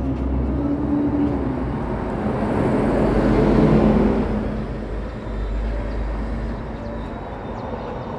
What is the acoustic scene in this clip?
street